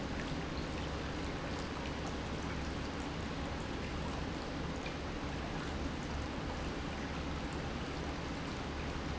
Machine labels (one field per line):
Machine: pump